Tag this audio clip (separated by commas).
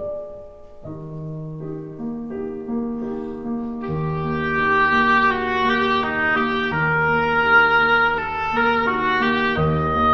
playing oboe